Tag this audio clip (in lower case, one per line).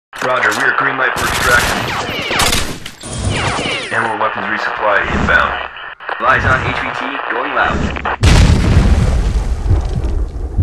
speech